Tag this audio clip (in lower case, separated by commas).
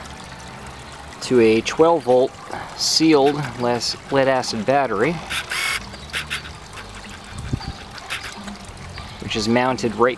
speech